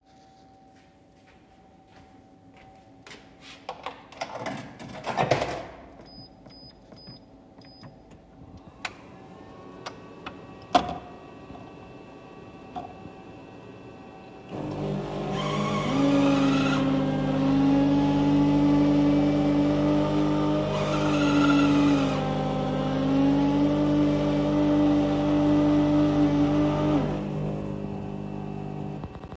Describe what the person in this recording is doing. I walked to the coffe machine and inserted my coins. Then I selected my coins and the machine ran